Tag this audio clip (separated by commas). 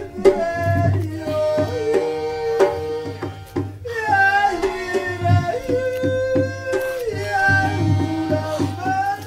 Music